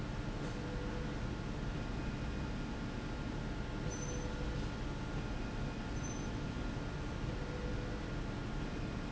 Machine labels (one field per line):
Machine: slide rail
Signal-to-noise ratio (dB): -6 dB